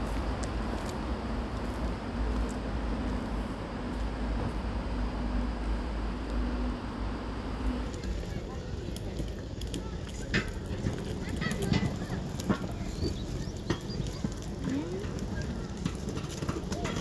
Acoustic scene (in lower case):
residential area